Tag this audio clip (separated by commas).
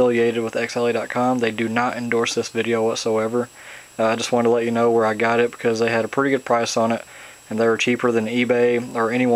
Speech